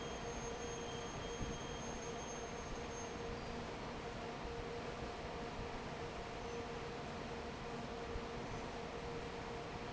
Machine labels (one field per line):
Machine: fan